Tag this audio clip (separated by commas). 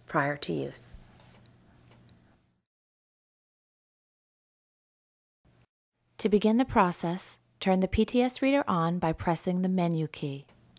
Speech